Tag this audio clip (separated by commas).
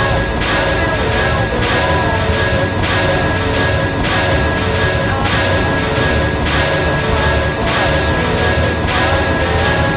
Music